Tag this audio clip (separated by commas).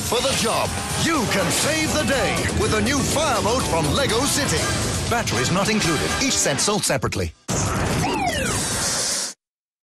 Speech, Music